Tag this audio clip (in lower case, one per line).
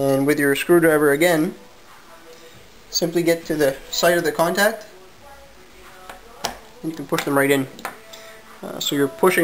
speech
music
inside a small room